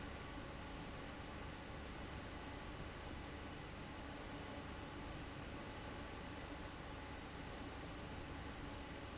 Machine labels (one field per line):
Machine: fan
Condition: abnormal